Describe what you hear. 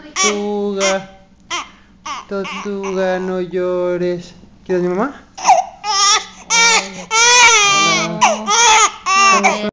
Older man talking, joined by older woman briefly, while young infant is fussing